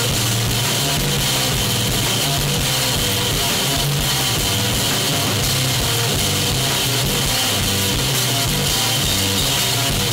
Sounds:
Rock music, Music

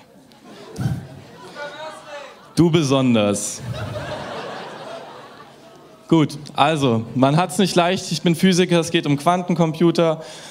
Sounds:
Speech

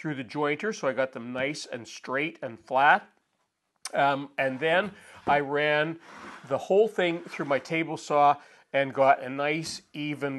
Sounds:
planing timber

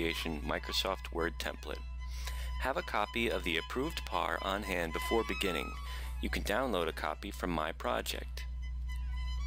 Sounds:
Music, Speech

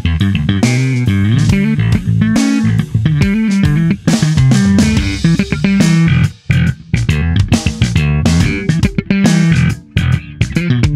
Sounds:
Bass guitar, Musical instrument, Funk, Guitar, Plucked string instrument, Music, playing bass guitar

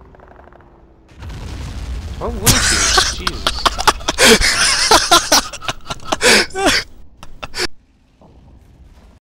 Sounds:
Speech

